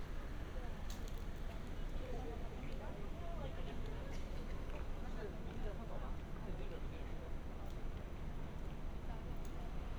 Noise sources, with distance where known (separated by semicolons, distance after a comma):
person or small group talking